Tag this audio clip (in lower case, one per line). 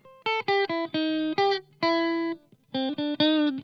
plucked string instrument
electric guitar
musical instrument
music
guitar